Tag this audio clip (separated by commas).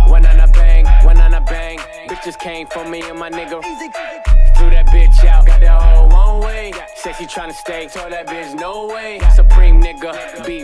Music